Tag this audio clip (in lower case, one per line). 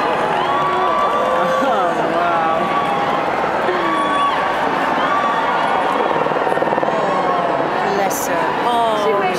car
speech
vehicle